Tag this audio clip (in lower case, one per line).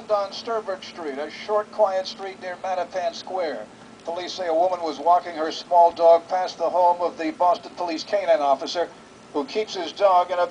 speech